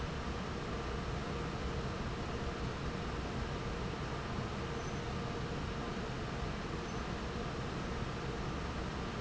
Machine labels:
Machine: fan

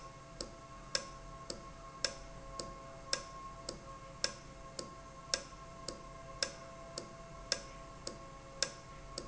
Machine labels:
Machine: valve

